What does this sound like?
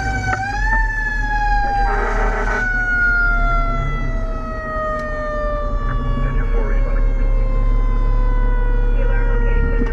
A fire engine siren is wailing and a horn is honked